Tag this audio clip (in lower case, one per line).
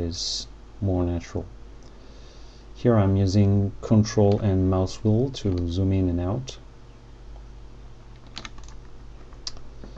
computer keyboard